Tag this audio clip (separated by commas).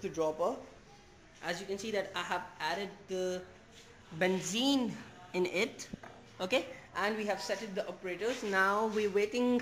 Speech